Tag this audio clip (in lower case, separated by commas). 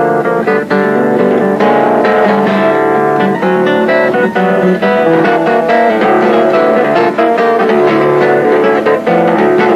inside a large room or hall, guitar, music